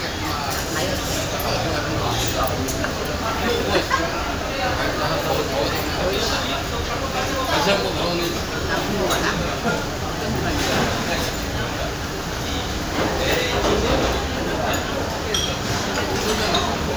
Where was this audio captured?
in a crowded indoor space